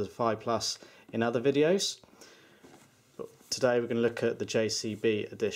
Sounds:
speech

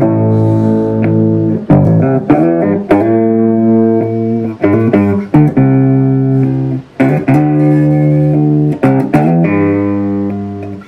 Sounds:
plucked string instrument, guitar, bass guitar, musical instrument, music, playing bass guitar

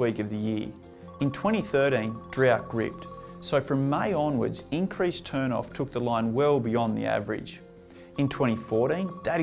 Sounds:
music, speech

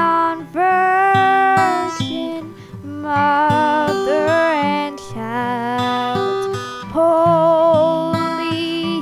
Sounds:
music, female singing

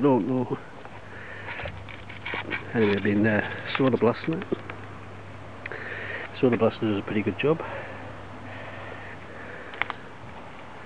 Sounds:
speech

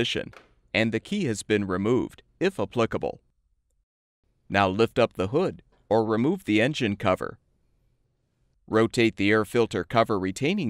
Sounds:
speech, rattle

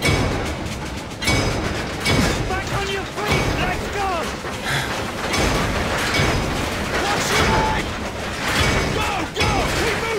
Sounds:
speech

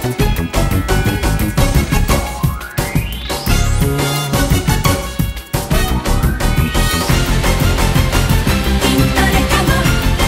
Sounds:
music

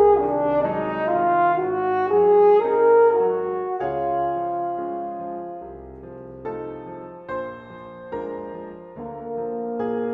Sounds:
piano, music

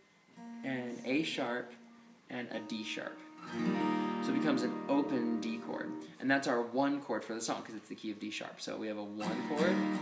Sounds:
strum, acoustic guitar, musical instrument, music, speech, guitar, plucked string instrument

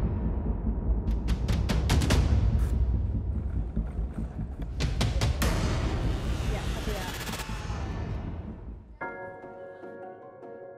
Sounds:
speech, music

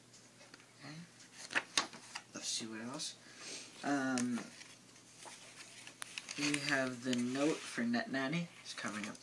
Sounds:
speech, inside a small room

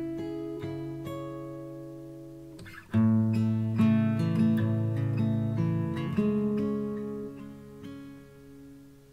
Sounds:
strum, guitar, acoustic guitar, plucked string instrument, musical instrument, music

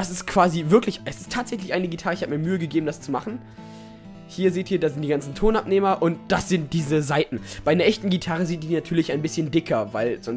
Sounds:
acoustic guitar, guitar, music, speech

